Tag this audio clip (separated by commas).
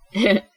Laughter, Human voice